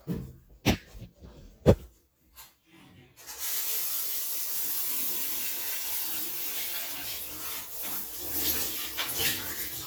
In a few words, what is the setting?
restroom